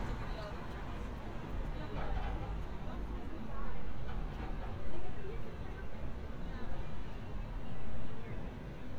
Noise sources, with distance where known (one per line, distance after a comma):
person or small group talking, near